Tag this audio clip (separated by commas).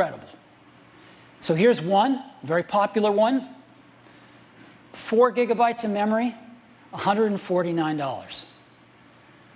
Speech